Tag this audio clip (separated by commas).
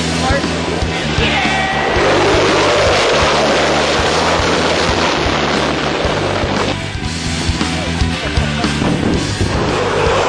Aircraft, airplane, Vehicle